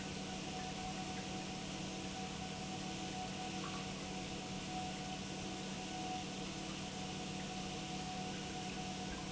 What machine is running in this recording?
pump